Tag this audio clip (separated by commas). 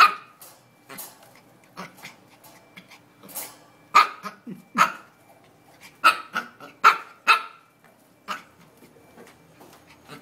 dog bow-wow, Animal, Bow-wow, Bark, Dog